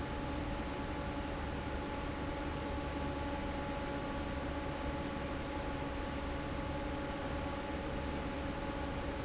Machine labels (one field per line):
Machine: fan